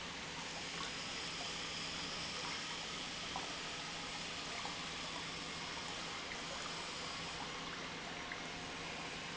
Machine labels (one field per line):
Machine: pump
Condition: normal